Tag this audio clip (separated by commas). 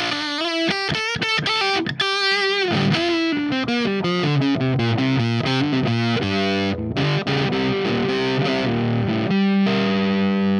Music, Distortion